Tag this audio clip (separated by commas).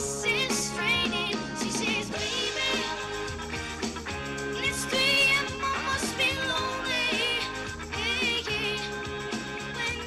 Music, Child singing